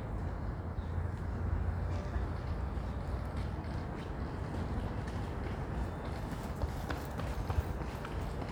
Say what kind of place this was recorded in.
residential area